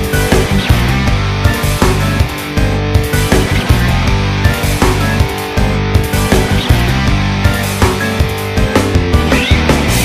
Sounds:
Punk rock, Music

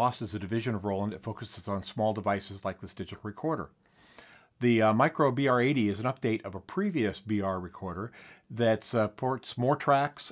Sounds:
Speech

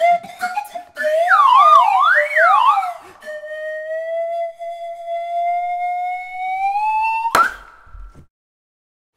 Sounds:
Music, Musical instrument

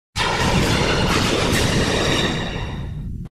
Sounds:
Television

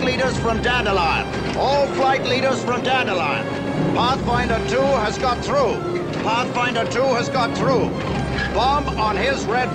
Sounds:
Music, Speech

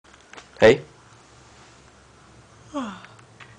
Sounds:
Speech

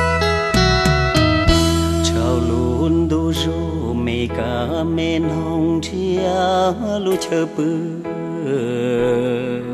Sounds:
Music

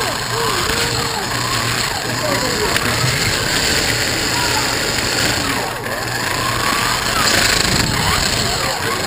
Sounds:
Car, Speech

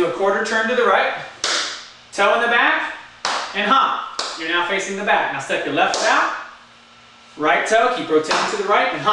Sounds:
Tap, Speech

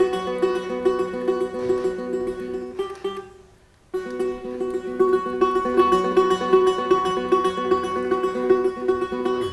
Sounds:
Music

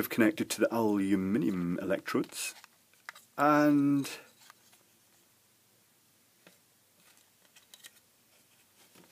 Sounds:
inside a small room, Speech

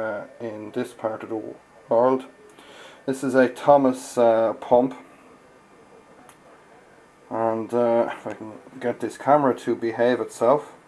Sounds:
Speech

